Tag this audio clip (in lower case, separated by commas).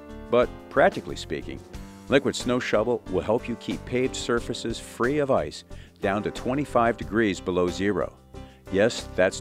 music, speech